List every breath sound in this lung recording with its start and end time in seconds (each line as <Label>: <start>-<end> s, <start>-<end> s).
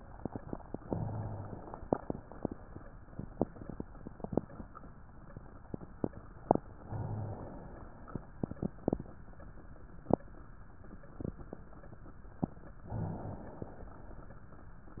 Inhalation: 0.79-1.82 s, 6.82-8.31 s, 12.87-14.36 s